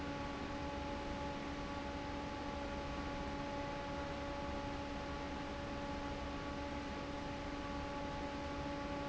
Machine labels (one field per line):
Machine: fan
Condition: normal